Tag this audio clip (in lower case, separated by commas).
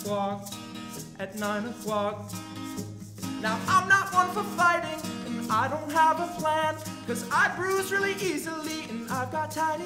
music